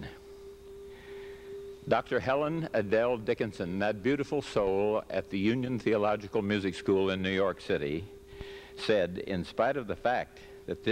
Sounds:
speech

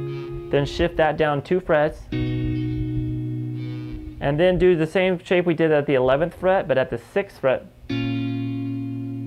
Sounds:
guitar, speech, plucked string instrument, music, musical instrument

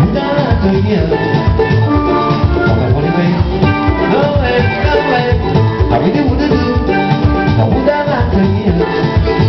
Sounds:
drum kit, drum, music, musical instrument, bass drum

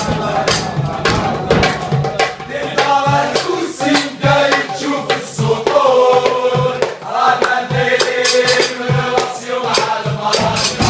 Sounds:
music

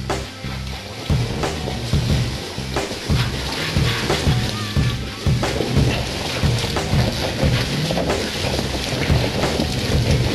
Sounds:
vehicle, car, music

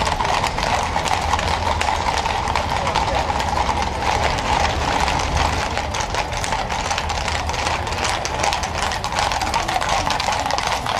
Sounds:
clip-clop, horse clip-clop, speech, horse, animal

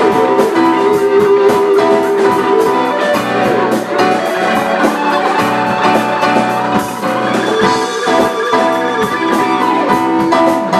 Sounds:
musical instrument, acoustic guitar, music, guitar, strum, plucked string instrument

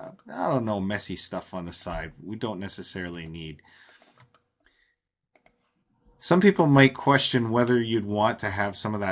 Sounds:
speech

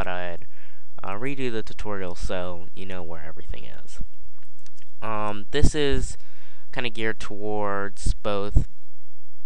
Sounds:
speech

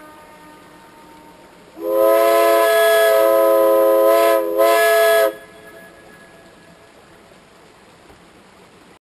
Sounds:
train horning, train horn

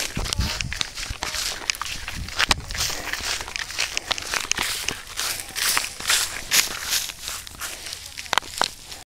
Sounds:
speech

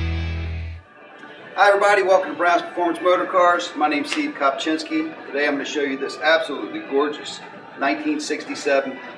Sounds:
music, speech

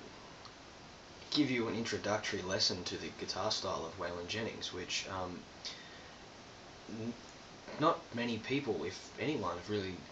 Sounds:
speech

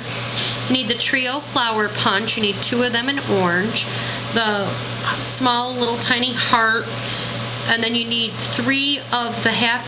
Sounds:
speech

